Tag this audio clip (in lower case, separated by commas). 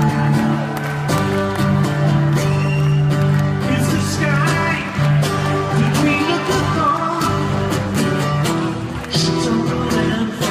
male singing, music